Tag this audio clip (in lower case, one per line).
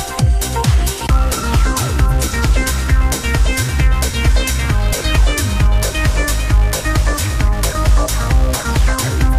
music